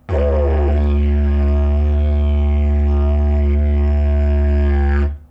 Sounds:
musical instrument, music

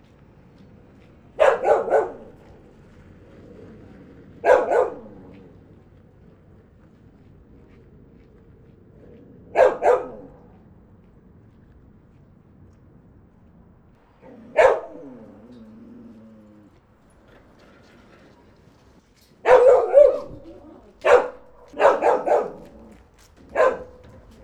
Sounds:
animal, domestic animals, bark, dog

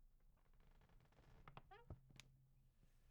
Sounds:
squeak

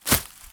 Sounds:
footsteps

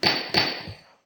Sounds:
tools, hammer

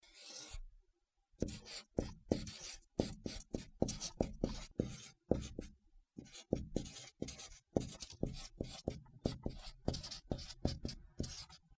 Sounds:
domestic sounds, writing

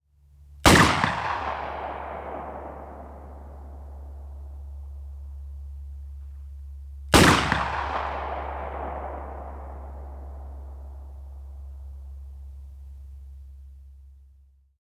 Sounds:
explosion, gunfire

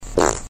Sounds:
fart

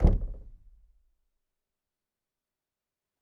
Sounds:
home sounds, knock, door

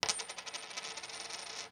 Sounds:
coin (dropping), home sounds

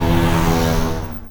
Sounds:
vehicle, motorcycle, motor vehicle (road)

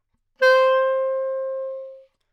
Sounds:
woodwind instrument, musical instrument, music

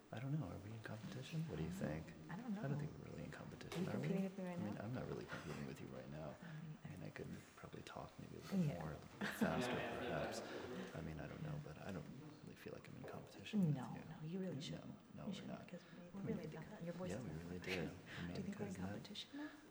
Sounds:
human voice, conversation, speech

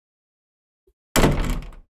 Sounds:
domestic sounds, slam, door

